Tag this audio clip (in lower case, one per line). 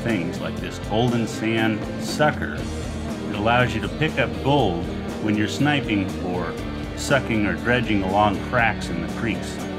speech
music